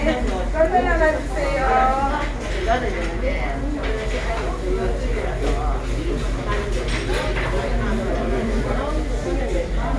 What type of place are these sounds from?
crowded indoor space